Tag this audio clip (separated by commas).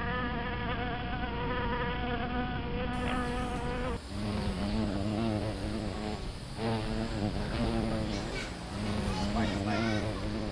Insect, bee or wasp, Fly